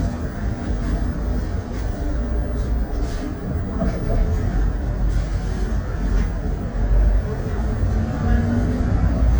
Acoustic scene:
bus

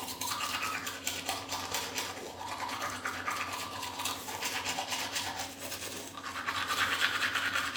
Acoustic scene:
restroom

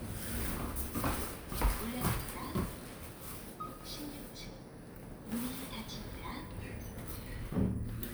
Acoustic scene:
elevator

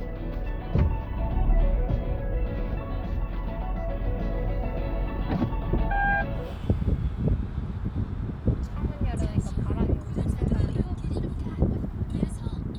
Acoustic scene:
car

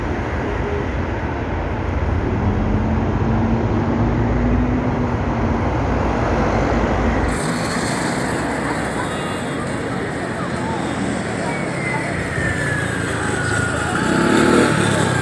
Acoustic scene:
street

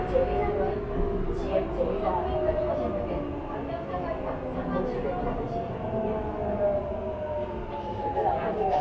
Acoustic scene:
subway train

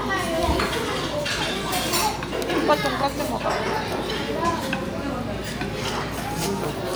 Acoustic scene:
restaurant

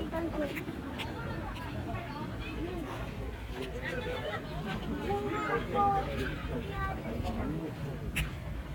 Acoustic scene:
park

